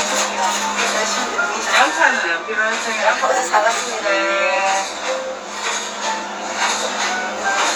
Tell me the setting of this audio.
crowded indoor space